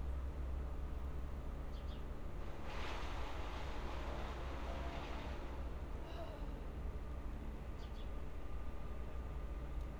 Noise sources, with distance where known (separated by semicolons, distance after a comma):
unidentified human voice